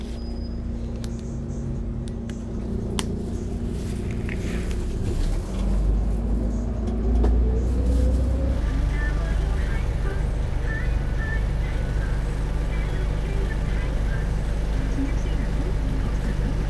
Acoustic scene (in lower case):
bus